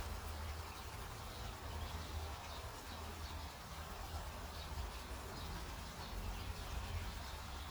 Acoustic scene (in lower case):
park